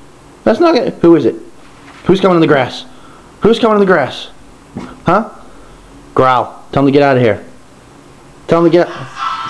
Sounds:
Speech

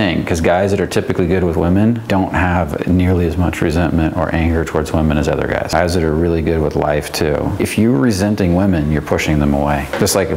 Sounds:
Speech

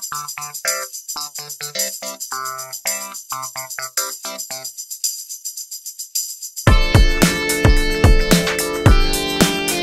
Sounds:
Music

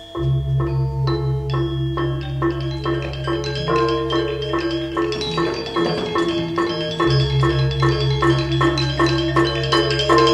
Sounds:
Glockenspiel, Mallet percussion, xylophone

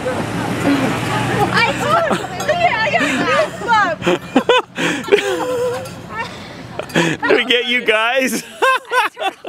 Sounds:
outside, urban or man-made, Speech

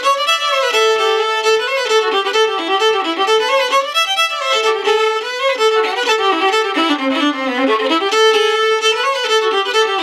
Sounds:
Music, Musical instrument, fiddle

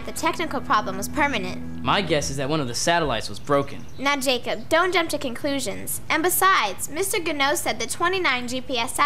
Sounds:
Speech, Music

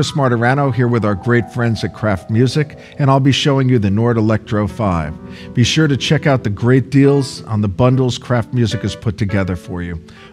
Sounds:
Speech, Music

